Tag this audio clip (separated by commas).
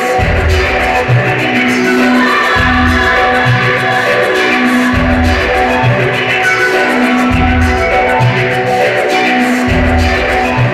Music